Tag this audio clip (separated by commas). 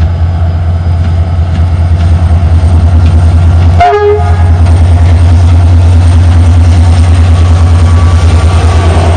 Train, Rail transport, Railroad car, Clickety-clack, Train horn